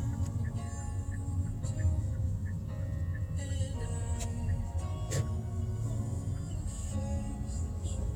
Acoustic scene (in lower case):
car